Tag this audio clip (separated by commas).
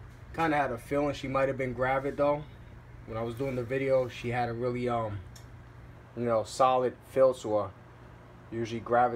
inside a small room, Speech